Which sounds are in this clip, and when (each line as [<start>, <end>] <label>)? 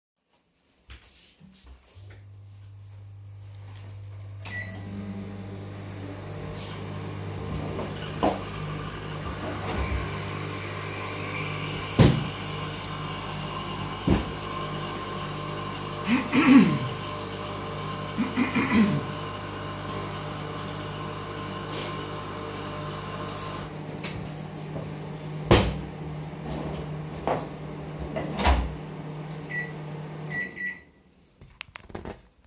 [0.83, 2.18] footsteps
[4.42, 30.97] microwave
[9.02, 23.78] coffee machine
[26.08, 27.57] wardrobe or drawer
[28.27, 28.70] wardrobe or drawer